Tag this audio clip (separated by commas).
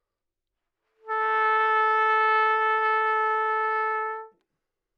Musical instrument, Trumpet, Music, Brass instrument